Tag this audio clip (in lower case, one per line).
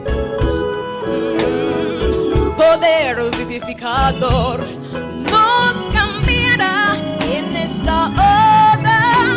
music